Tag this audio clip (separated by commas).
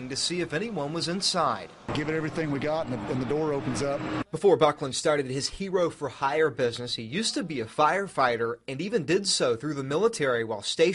Speech